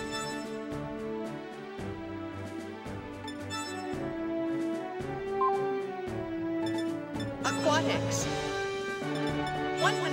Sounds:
speech, music

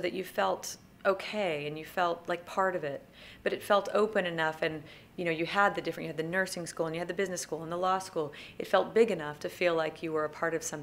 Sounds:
speech

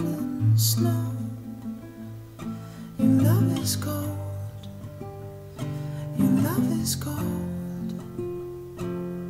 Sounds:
music

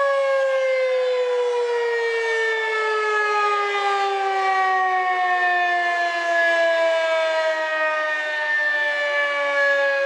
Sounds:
siren

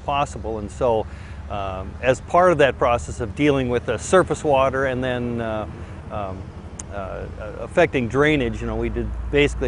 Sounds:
speech

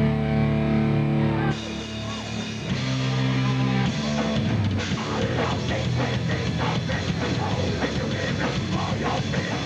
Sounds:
blues, music, disco

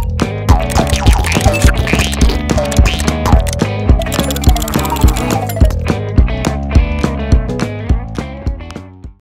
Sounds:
music

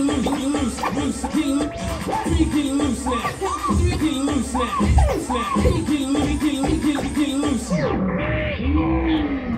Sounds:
music, hip hop music

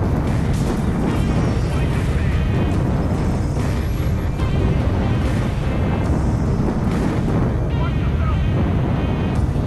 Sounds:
music, speech

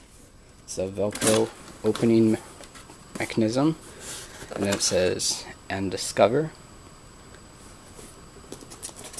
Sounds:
speech

